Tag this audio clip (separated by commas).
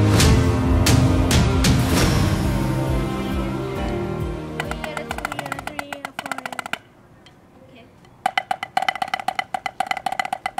Speech, Snare drum, Drum, Musical instrument, Percussion, Music, Child speech